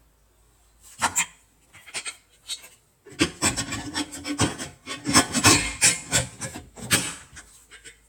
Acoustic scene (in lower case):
kitchen